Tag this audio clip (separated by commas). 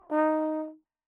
Brass instrument, Music, Musical instrument